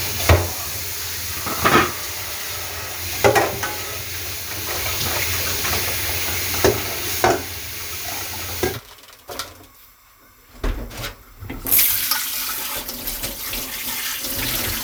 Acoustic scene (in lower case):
kitchen